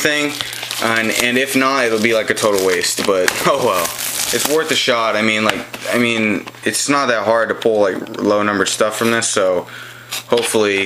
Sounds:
Speech

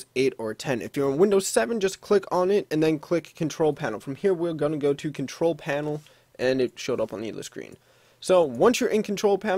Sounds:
Speech

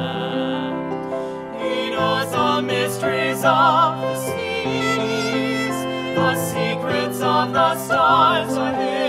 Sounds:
Music

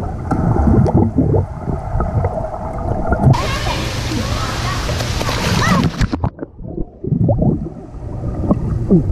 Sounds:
swimming

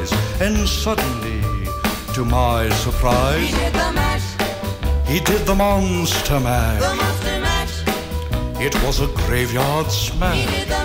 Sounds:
Male singing, Music

